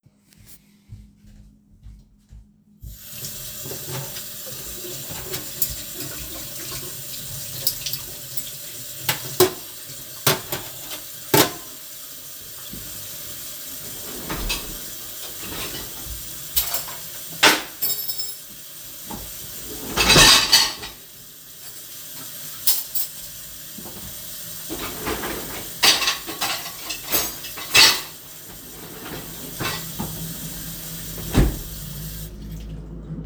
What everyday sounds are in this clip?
running water, cutlery and dishes